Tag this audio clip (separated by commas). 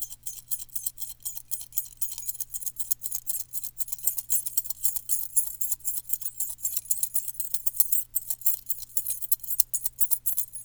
Keys jangling, Domestic sounds